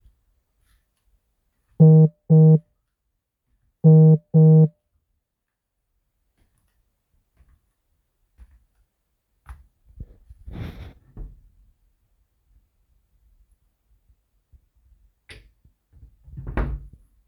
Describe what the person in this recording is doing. My phone vibrated as i walked to the wardrobe. i then opened the wardrobe to take something before closing it.